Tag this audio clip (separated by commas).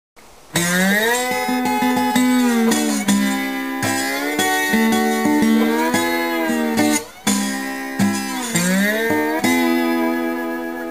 slide guitar, Music